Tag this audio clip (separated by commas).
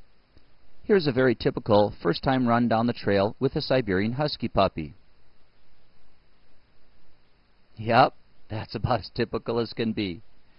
Speech